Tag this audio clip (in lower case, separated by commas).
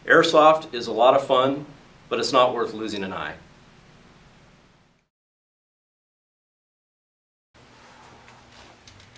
speech